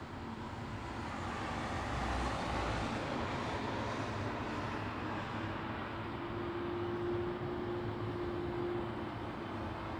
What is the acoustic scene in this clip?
residential area